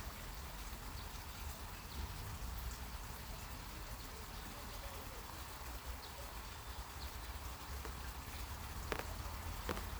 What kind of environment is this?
park